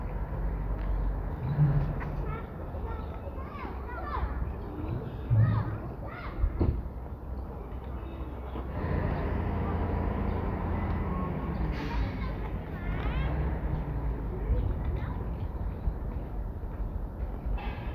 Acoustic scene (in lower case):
residential area